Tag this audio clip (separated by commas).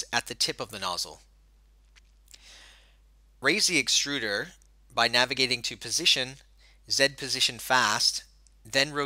Speech